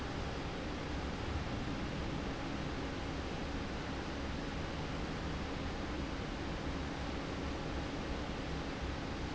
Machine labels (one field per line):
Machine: fan